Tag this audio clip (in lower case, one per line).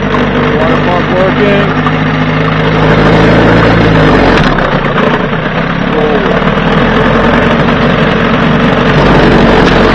pump (liquid)